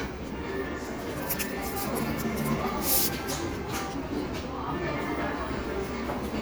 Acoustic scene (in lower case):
cafe